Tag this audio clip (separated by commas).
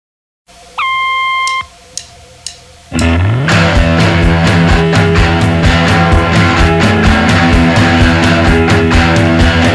Music